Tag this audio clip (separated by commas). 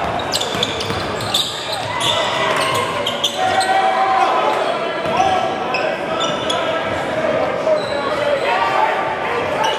basketball bounce